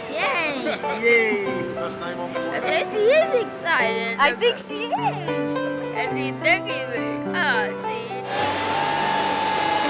A group of people is heard cheering over a background of piano music followed by a sound resembling wind or ocean waves